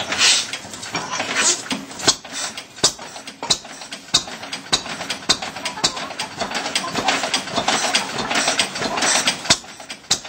Engine starting and then digging and scraping sounds